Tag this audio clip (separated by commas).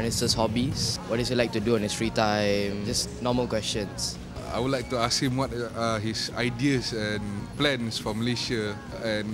Speech, Music